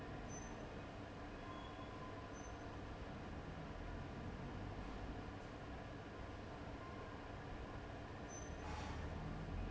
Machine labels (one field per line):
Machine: fan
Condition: abnormal